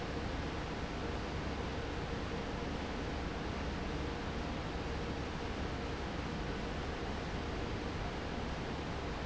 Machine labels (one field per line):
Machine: fan